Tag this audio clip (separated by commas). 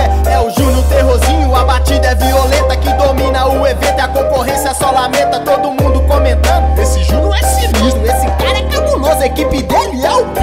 Music